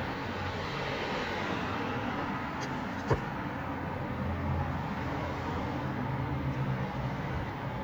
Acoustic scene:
residential area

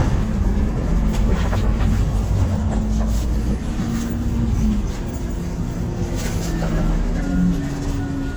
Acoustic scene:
bus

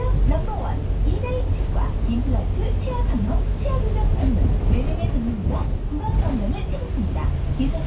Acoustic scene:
bus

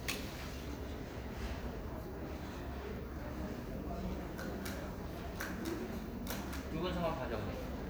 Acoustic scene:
crowded indoor space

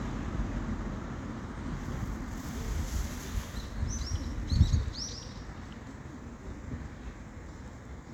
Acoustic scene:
residential area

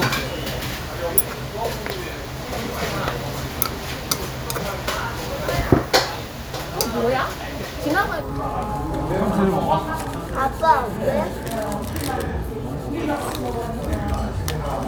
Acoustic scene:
restaurant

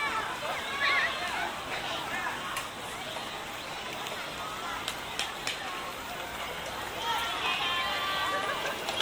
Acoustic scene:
park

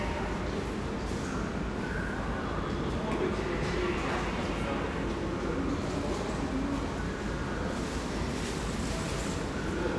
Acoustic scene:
crowded indoor space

